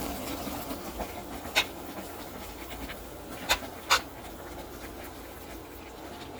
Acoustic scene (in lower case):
kitchen